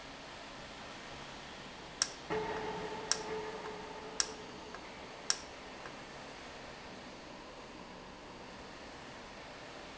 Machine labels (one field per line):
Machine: valve